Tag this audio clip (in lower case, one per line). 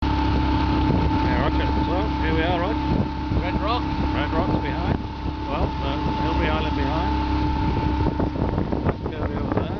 vehicle
speech
boat